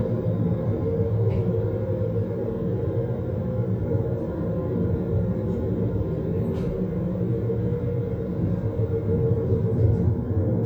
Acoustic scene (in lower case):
car